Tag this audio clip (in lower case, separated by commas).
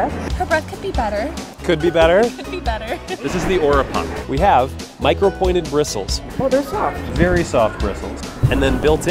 music, speech